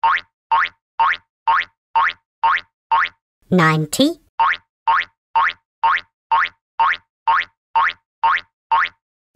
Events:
[0.00, 0.33] boing
[0.50, 0.80] boing
[0.95, 1.29] boing
[1.45, 1.75] boing
[1.94, 2.25] boing
[2.42, 2.72] boing
[2.89, 3.20] boing
[3.40, 4.28] background noise
[3.49, 4.16] kid speaking
[4.37, 4.68] boing
[4.84, 5.18] boing
[5.34, 5.65] boing
[5.80, 6.13] boing
[6.29, 6.61] boing
[6.78, 7.07] boing
[7.26, 7.57] boing
[7.73, 8.05] boing
[8.22, 8.52] boing
[8.70, 9.02] boing

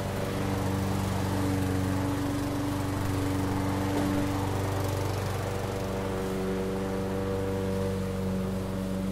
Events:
[0.00, 9.11] lawn mower

